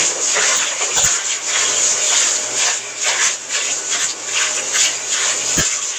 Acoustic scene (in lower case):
kitchen